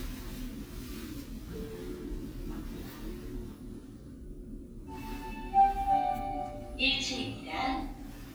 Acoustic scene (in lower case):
elevator